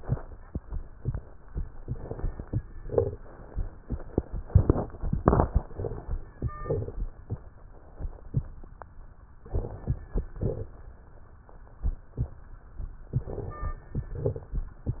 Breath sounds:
Inhalation: 1.72-2.58 s, 5.49-6.33 s, 9.35-10.21 s, 13.08-13.92 s
Exhalation: 2.84-3.70 s, 6.33-7.17 s, 10.25-10.97 s, 13.94-14.78 s
Crackles: 1.72-2.56 s, 2.84-3.70 s, 5.49-6.33 s, 6.33-7.17 s, 9.35-10.19 s, 10.25-10.97 s, 13.08-13.92 s, 13.94-14.78 s

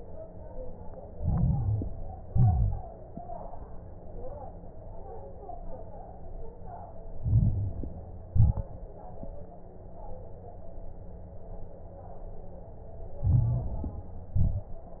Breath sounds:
Inhalation: 1.06-2.14 s, 7.14-8.23 s, 13.19-14.27 s
Exhalation: 2.24-2.90 s, 8.27-8.93 s, 14.37-15.00 s
Crackles: 1.06-2.14 s, 2.24-2.90 s, 7.14-8.23 s, 8.27-8.93 s, 13.19-14.27 s, 14.37-15.00 s

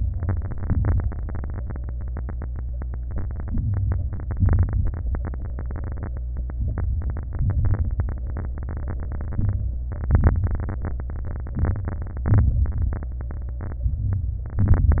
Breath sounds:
Inhalation: 0.00-0.62 s, 3.47-4.19 s, 6.55-7.27 s, 9.36-9.92 s, 11.60-12.15 s, 13.94-14.57 s
Exhalation: 0.61-1.09 s, 4.23-4.95 s, 7.29-8.02 s, 9.94-10.50 s, 12.24-12.88 s, 14.62-15.00 s
Crackles: 0.05-0.60 s, 0.61-1.09 s, 3.47-4.19 s, 4.23-4.95 s, 6.55-7.27 s, 7.29-8.02 s, 9.36-9.92 s, 9.94-10.50 s, 11.60-12.15 s, 12.24-12.88 s, 13.94-14.57 s, 14.62-15.00 s

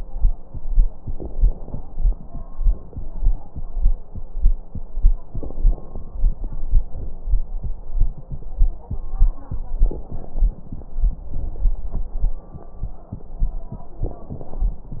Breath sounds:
Inhalation: 0.98-2.48 s, 5.24-6.79 s, 9.74-11.29 s, 13.92-15.00 s
Exhalation: 2.52-3.61 s, 6.80-7.95 s, 11.28-12.55 s
Crackles: 0.98-2.48 s, 2.52-3.61 s, 5.24-6.79 s, 6.80-7.95 s, 9.72-11.27 s, 11.28-12.55 s, 13.92-15.00 s

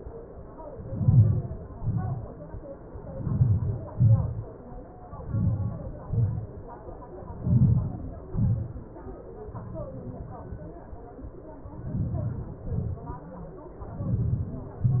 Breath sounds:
Inhalation: 1.01-1.45 s, 1.75-2.20 s, 3.30-3.75 s, 5.33-5.77 s, 7.51-7.94 s, 12.03-12.46 s, 14.09-14.52 s
Exhalation: 3.89-4.33 s, 6.04-6.37 s, 8.31-8.74 s, 12.76-13.08 s, 14.69-15.00 s
Crackles: 1.01-1.45 s, 1.75-2.20 s, 3.30-3.75 s, 3.89-4.33 s, 5.33-5.77 s, 7.51-7.94 s, 8.31-8.74 s, 12.03-12.46 s, 12.76-13.08 s, 14.09-14.52 s, 14.69-15.00 s

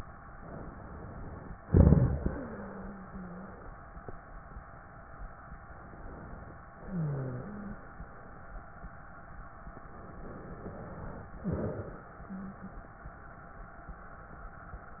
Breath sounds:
Inhalation: 0.32-1.55 s, 5.56-6.61 s, 10.20-11.29 s
Exhalation: 1.65-3.50 s, 6.85-8.03 s, 11.44-12.77 s
Wheeze: 2.27-3.50 s, 6.85-7.89 s, 12.21-12.77 s
Crackles: 1.65-2.21 s, 11.40-11.97 s

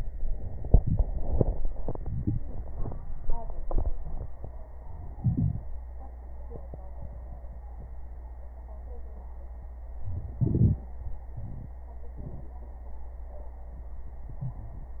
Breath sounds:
Inhalation: 5.20-5.68 s, 10.03-10.84 s
Wheeze: 14.38-14.91 s
Crackles: 10.03-10.84 s

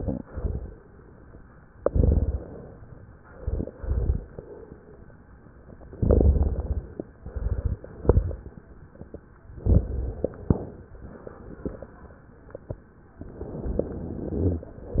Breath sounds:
Inhalation: 1.75-2.85 s, 6.00-7.07 s, 9.52-10.99 s, 13.21-14.74 s
Exhalation: 3.35-5.04 s, 7.17-9.00 s, 14.89-15.00 s
Rhonchi: 14.31-14.67 s
Crackles: 1.81-2.52 s, 3.41-4.46 s, 5.97-6.97 s, 7.21-8.59 s, 9.57-10.68 s, 14.89-15.00 s

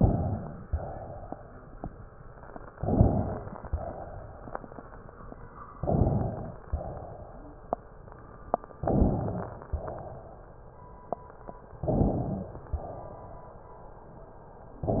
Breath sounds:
Inhalation: 0.00-0.59 s, 2.71-3.64 s, 5.69-6.62 s, 8.77-9.70 s, 11.74-12.75 s
Exhalation: 0.59-1.61 s, 3.64-4.76 s, 6.62-7.70 s, 9.70-10.84 s, 12.75-13.68 s

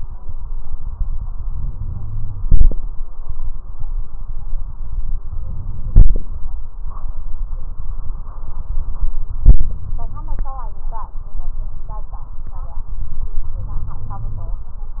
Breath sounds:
Inhalation: 1.50-2.44 s, 5.42-6.48 s, 13.51-14.63 s

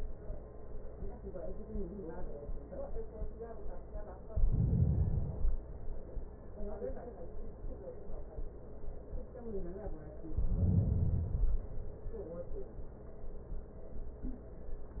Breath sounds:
Inhalation: 4.31-5.66 s, 10.27-11.33 s
Exhalation: 11.32-12.38 s

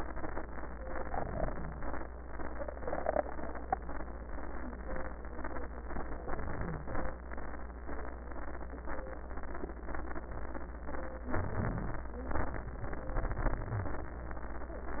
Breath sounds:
Inhalation: 6.29-7.20 s, 11.28-12.12 s
Wheeze: 11.28-12.12 s

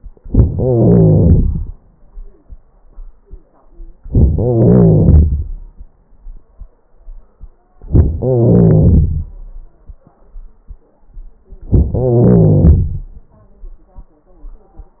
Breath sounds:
Inhalation: 0.25-0.54 s, 4.04-4.33 s, 7.88-8.19 s, 11.75-11.98 s
Exhalation: 0.54-2.17 s, 4.33-5.99 s, 8.18-9.58 s, 11.97-13.31 s
Crackles: 0.22-0.50 s, 0.51-1.78 s, 4.03-4.29 s, 4.33-5.47 s, 7.87-8.15 s, 8.18-9.27 s, 11.74-11.95 s, 11.97-13.06 s

